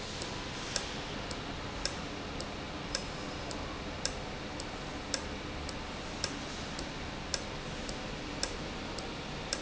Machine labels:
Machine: valve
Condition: normal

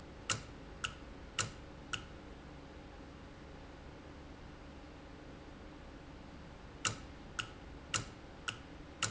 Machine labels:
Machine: valve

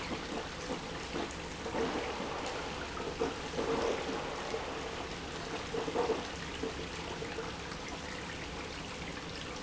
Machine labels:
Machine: pump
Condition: abnormal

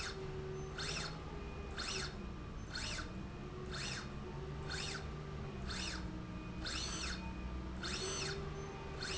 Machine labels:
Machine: slide rail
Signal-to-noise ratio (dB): 0 dB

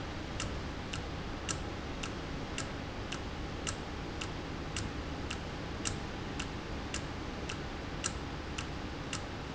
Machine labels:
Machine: valve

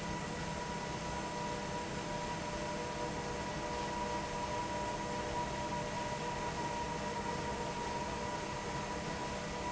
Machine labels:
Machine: fan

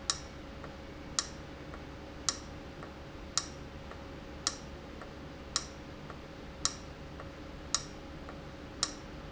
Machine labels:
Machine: valve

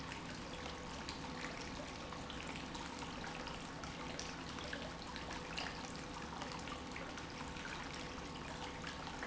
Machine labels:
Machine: pump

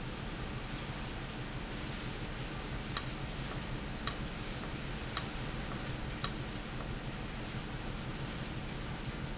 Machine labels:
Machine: valve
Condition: abnormal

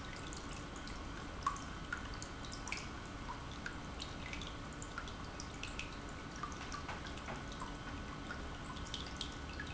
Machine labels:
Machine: pump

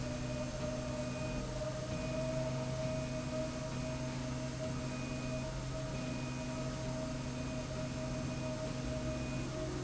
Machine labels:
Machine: slide rail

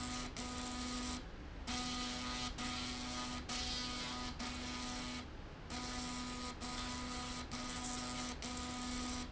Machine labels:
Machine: slide rail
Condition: abnormal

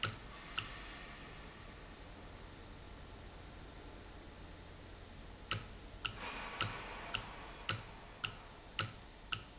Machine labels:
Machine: valve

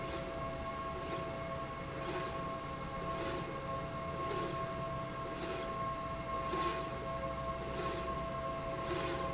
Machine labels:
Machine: slide rail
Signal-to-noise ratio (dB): -6 dB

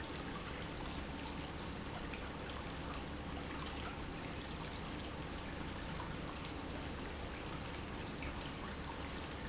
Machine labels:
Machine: pump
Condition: normal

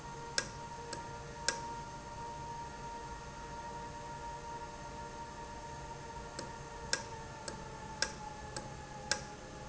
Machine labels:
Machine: valve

